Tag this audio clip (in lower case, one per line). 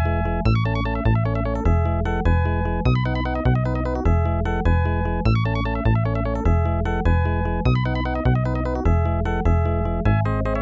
funny music
music